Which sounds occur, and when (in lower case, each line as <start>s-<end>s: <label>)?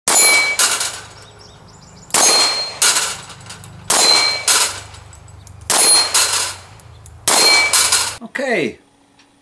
6.8s-7.2s: bird song
7.2s-7.7s: gunshot
7.3s-7.7s: clang
7.7s-8.2s: generic impact sounds
8.2s-9.4s: mechanisms
8.3s-8.7s: male speech
9.1s-9.3s: tick